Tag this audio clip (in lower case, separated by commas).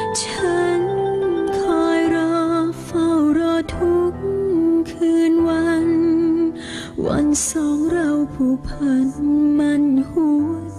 music